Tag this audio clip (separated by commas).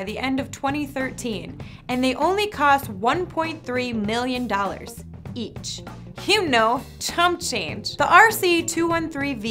Music, Speech